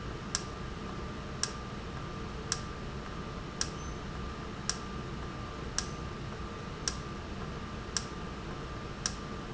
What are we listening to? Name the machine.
valve